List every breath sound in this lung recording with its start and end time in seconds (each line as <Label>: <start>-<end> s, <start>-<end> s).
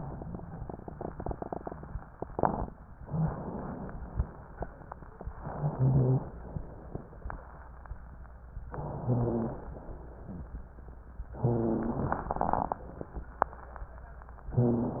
Inhalation: 3.04-3.95 s, 5.39-6.30 s, 8.69-9.73 s, 11.40-12.31 s
Exhalation: 6.30-7.34 s, 9.73-10.55 s
Rhonchi: 5.39-6.30 s, 8.69-9.73 s, 11.40-12.31 s